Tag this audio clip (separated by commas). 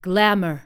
Human voice, woman speaking, Speech